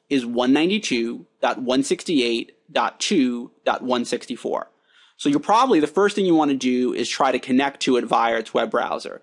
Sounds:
speech

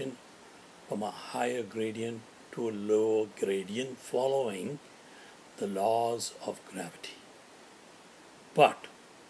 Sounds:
speech

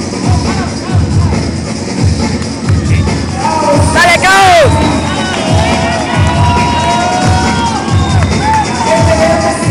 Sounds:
music
speech
crowd

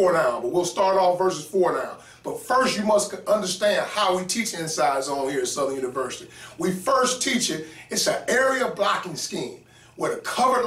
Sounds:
speech

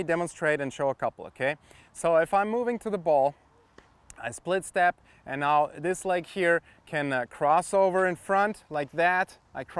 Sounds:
speech

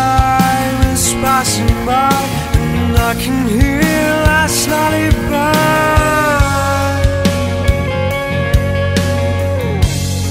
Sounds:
new-age music
soul music
music

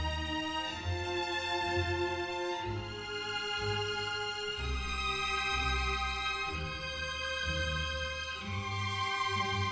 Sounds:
musical instrument
music
violin

